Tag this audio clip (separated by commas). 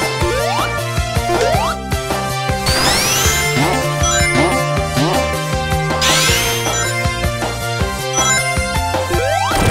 Music